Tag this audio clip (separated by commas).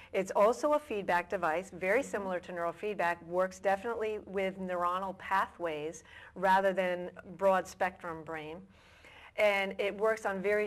Speech, inside a small room